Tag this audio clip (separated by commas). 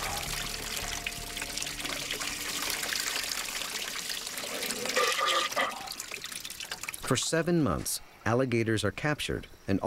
Water, Liquid, Trickle, Speech, faucet